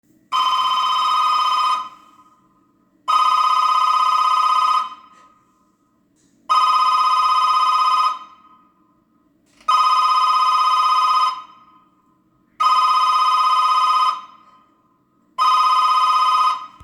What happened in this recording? I went to the hallway to ring the bell and turn on the light. I rang the bell a few times.